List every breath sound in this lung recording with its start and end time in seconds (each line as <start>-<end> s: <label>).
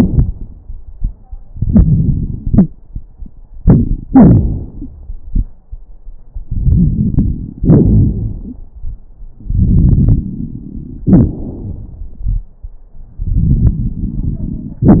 1.51-2.44 s: inhalation
1.51-2.44 s: crackles
2.46-2.71 s: exhalation
3.60-4.07 s: inhalation
3.60-4.07 s: crackles
4.11-5.63 s: exhalation
4.75-4.91 s: wheeze
6.42-7.62 s: inhalation
6.42-7.62 s: crackles
7.61-9.04 s: exhalation
8.43-8.62 s: wheeze
9.36-11.07 s: inhalation
11.07-12.79 s: exhalation
11.07-12.79 s: crackles
13.18-14.87 s: inhalation
13.18-14.87 s: crackles